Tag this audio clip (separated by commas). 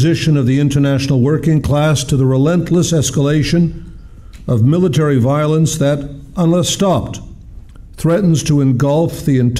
Speech, Male speech